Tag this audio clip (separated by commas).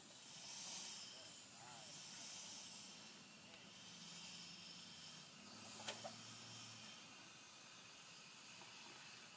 Hiss, Steam